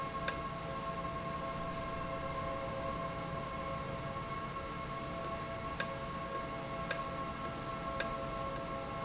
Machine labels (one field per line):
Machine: valve